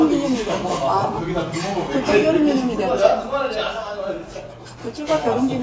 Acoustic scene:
restaurant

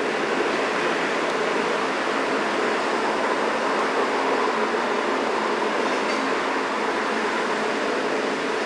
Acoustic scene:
street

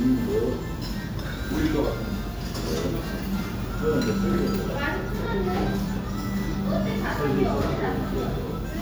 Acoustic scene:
restaurant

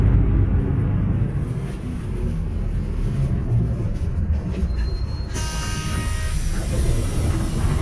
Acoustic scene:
bus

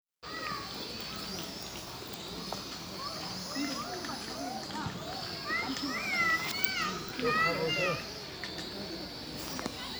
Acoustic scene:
park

